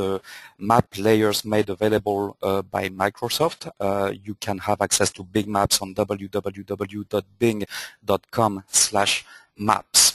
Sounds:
Speech

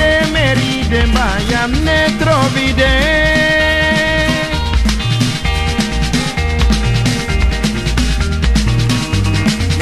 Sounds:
Music

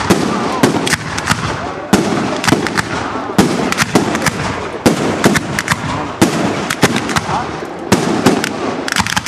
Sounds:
Fireworks, Speech, fireworks banging, Firecracker

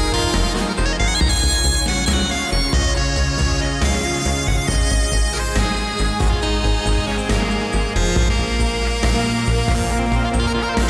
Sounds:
Music

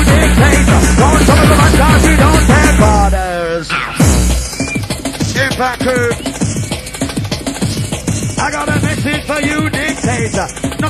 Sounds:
Techno, Music, Electronic music

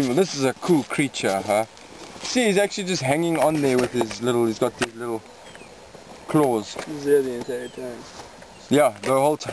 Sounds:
Speech

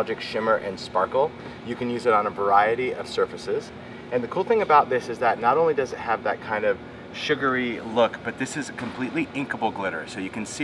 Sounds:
Speech

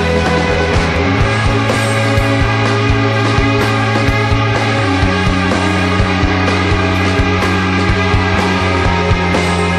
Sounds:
Music

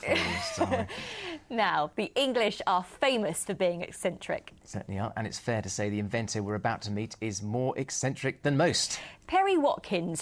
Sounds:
Speech

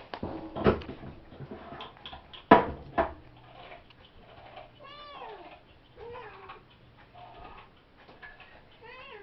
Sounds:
Speech, Domestic animals, Music, Cat, Animal, Meow

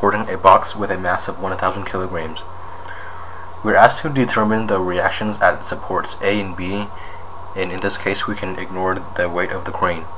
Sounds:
Speech

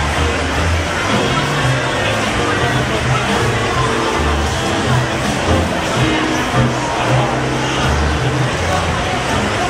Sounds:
Speech

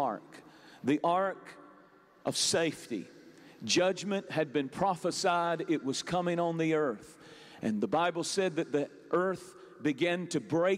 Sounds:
Speech

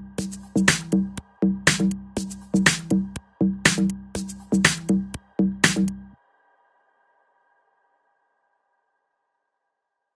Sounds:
Silence, Music

